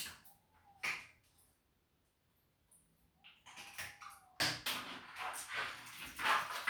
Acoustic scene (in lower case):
restroom